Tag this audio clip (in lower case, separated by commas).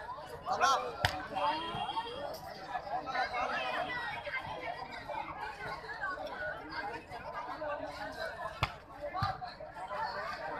playing volleyball